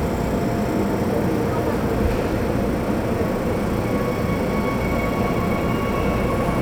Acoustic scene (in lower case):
subway train